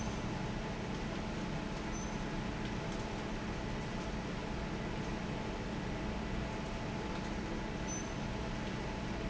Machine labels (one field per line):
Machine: fan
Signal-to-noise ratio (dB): -6 dB